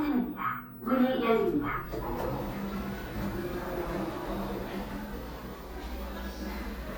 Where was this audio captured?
in an elevator